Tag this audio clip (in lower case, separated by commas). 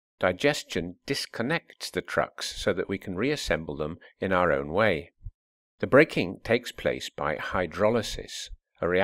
speech, narration